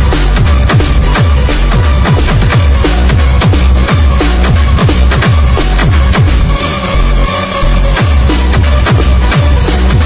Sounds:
electronic music, electronic dance music, music, happy music

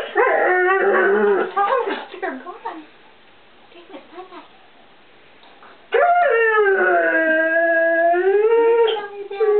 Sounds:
animal, dog, bark, speech, domestic animals

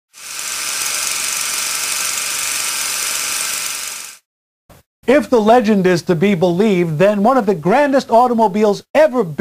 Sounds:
inside a large room or hall, speech

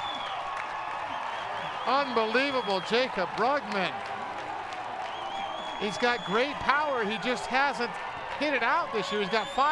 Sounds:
speech

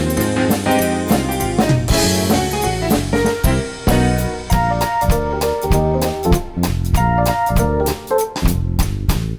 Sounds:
music, percussion

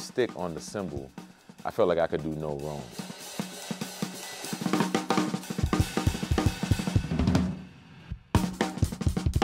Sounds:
percussion, drum kit, speech, music, musical instrument, cymbal, hi-hat, drum

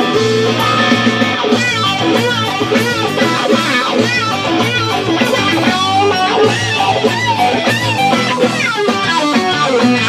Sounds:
acoustic guitar, music, musical instrument

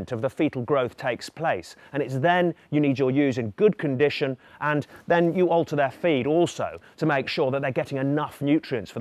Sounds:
speech

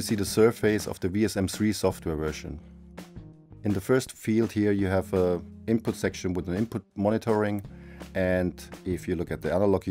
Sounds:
speech, music

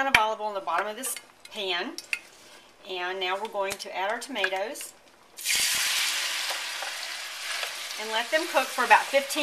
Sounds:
inside a small room, speech

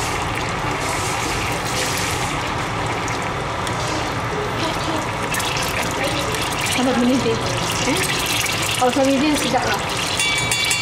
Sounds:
speech, liquid

